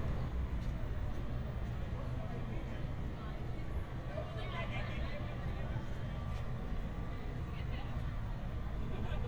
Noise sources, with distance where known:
person or small group talking, far

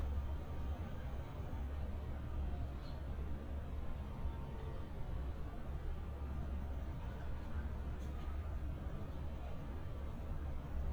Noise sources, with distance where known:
background noise

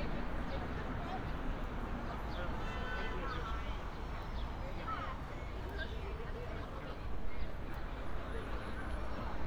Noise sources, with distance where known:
car horn, far
person or small group talking, near

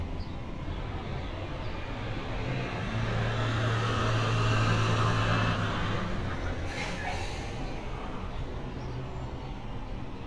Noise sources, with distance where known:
large-sounding engine, near

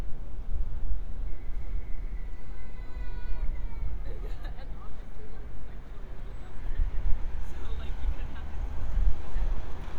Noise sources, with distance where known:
unidentified human voice, near

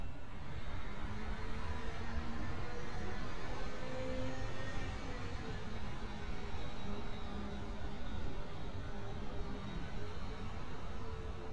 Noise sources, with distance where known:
engine of unclear size, far

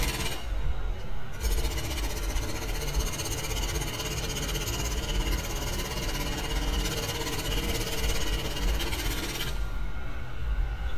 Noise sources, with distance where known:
jackhammer, near

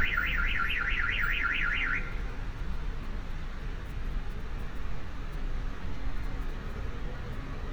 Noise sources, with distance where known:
car alarm, near

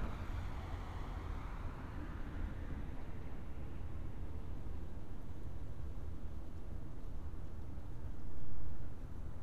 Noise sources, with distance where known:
small-sounding engine, far

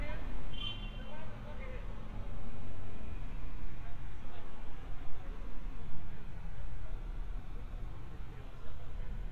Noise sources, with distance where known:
car horn
person or small group talking, far

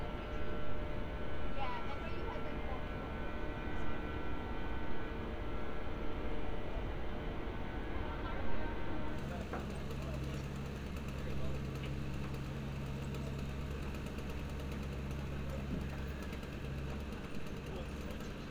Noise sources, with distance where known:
small-sounding engine

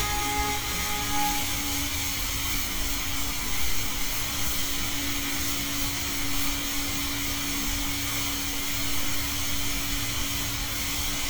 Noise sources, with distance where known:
unidentified powered saw, near
car horn, far

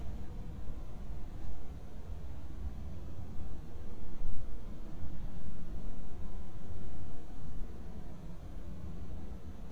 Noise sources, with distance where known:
background noise

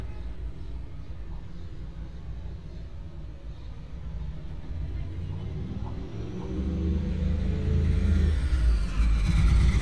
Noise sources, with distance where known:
engine of unclear size, near

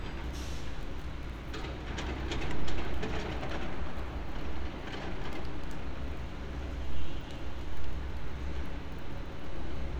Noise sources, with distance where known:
unidentified impact machinery

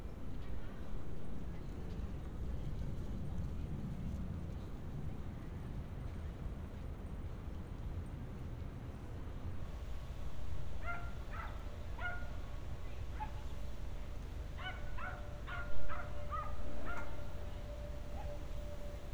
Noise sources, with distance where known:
background noise

